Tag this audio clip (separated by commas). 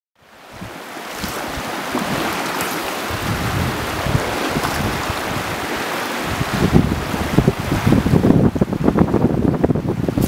Ocean, Wind, outside, rural or natural, Rustling leaves